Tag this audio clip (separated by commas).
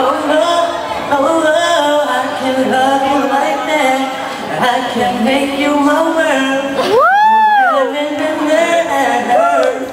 Male singing